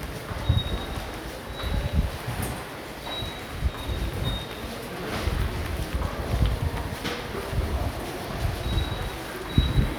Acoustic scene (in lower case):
subway station